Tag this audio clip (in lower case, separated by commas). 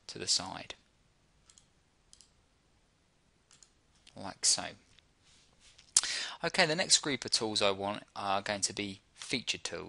clicking, speech